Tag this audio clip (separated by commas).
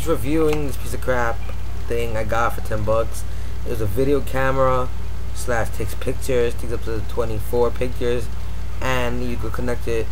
Speech